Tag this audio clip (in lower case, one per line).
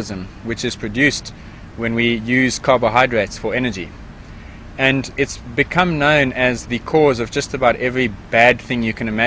male speech
speech